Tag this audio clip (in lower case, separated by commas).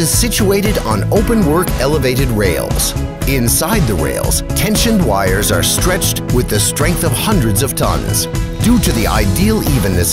speech, music